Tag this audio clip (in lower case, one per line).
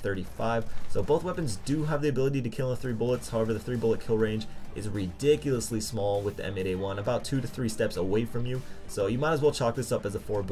speech
music